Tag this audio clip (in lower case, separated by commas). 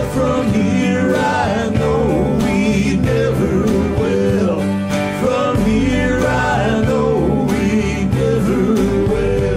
singing, country, music